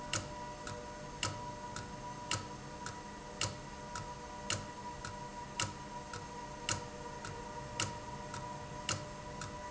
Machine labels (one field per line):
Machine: valve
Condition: abnormal